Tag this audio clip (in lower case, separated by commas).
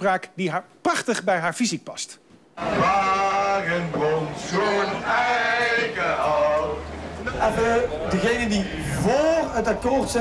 vehicle, speech